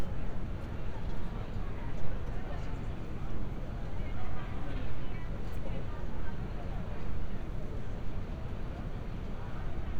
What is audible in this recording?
person or small group talking